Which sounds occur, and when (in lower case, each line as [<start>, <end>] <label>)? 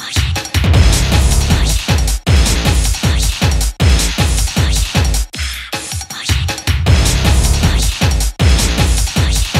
[0.00, 9.55] music